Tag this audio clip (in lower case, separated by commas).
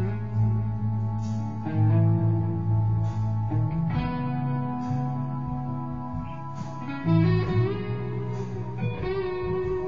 guitar, plucked string instrument, musical instrument, music, strum